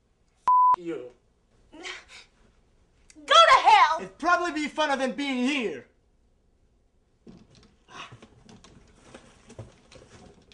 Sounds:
speech, inside a small room

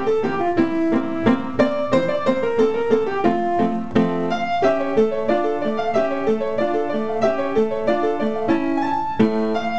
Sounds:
piano, music

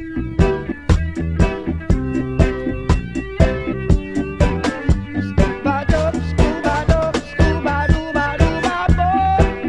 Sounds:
funk, music

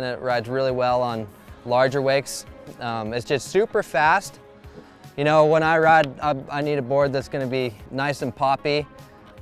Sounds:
music, speech

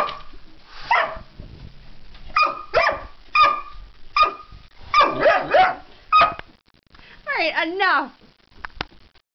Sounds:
speech, cat, animal, pets

